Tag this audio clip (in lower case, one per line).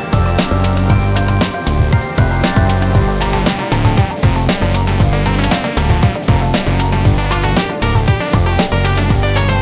music
video game music